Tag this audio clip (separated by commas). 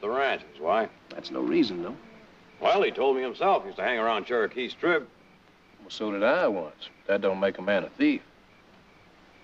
Speech